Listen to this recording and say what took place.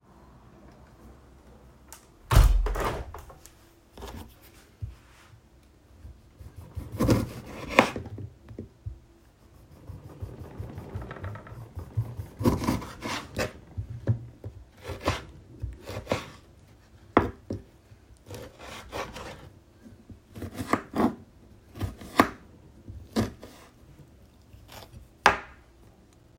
I closed the window, cut a lime, put a knife